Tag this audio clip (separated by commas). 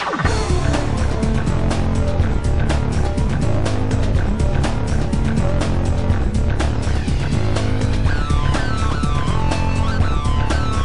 Music